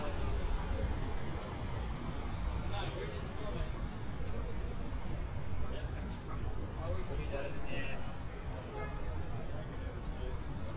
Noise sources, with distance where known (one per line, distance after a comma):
person or small group talking, near